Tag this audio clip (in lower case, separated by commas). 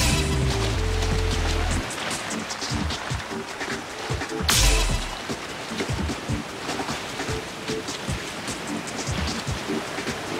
music